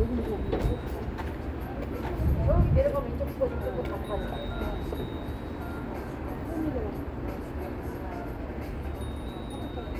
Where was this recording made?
on a street